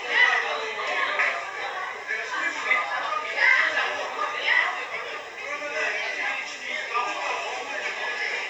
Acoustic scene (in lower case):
crowded indoor space